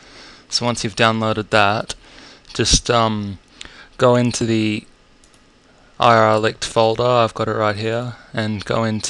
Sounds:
speech

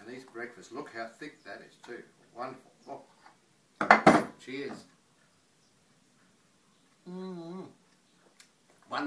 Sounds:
inside a small room, speech

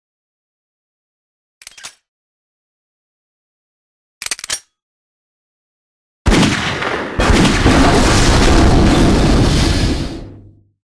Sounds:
silence, inside a large room or hall

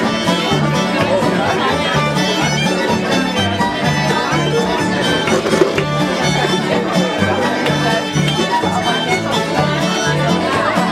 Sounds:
music, speech

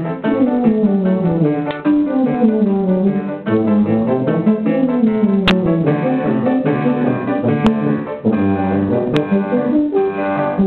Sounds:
brass instrument, music, classical music, piano, musical instrument

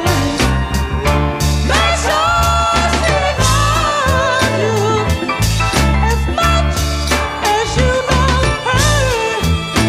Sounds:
music, ska, singing

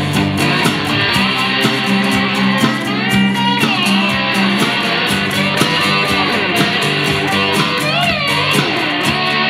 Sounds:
guitar, musical instrument, playing electric guitar, electric guitar, music

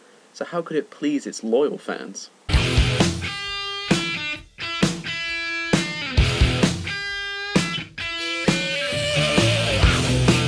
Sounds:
speech, music

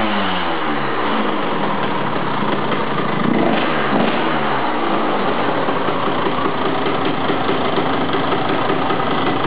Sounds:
vehicle, motorcycle, idling

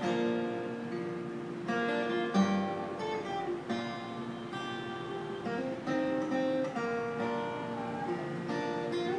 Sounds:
acoustic guitar, music, guitar, musical instrument

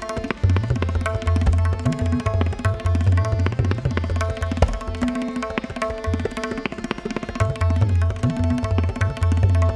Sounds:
playing tabla

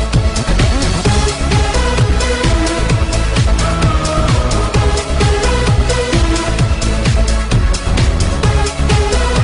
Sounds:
music

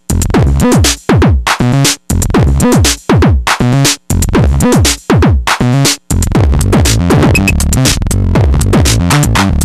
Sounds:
musical instrument, sampler, music, drum machine

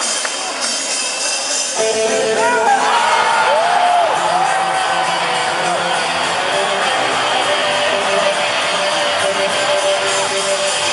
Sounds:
outside, urban or man-made, music, speech

